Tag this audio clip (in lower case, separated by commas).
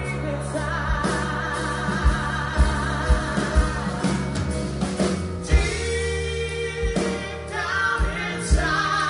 music, singing, inside a large room or hall